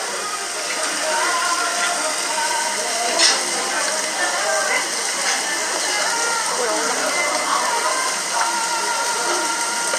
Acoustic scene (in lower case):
restaurant